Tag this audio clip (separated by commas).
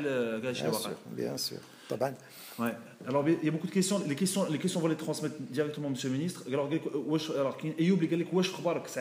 Speech